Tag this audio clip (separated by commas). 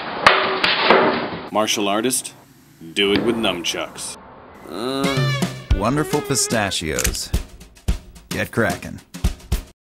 Music, Speech